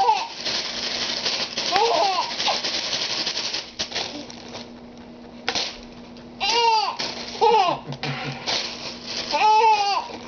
A baby is laughing, rattling is occurring, and an adult male laughs